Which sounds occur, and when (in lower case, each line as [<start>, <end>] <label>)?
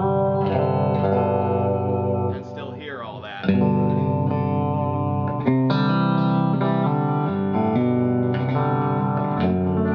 [0.00, 9.94] music
[2.23, 3.53] male speech